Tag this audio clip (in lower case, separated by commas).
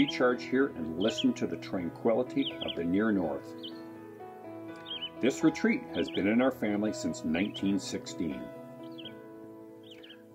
music, speech